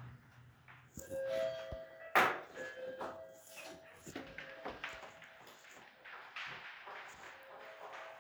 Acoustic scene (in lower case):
elevator